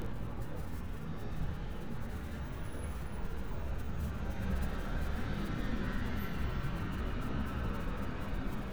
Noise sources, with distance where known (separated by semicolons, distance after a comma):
engine of unclear size, far